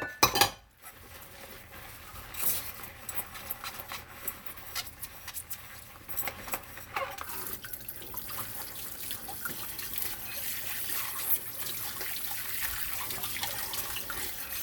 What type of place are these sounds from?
kitchen